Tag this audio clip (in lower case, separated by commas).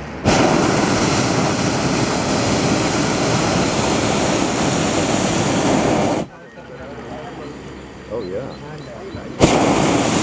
speech, bird